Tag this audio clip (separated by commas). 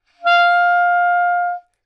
Musical instrument, Music, Wind instrument